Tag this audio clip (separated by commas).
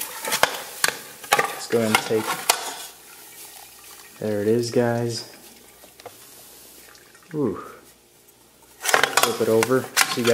Liquid, Speech